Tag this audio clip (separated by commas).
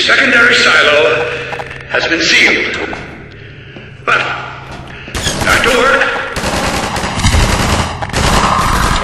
Machine gun, gunfire